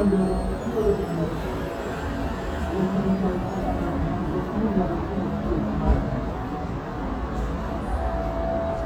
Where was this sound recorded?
on a street